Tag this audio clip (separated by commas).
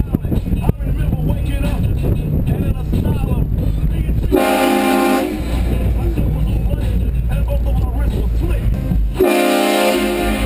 train horning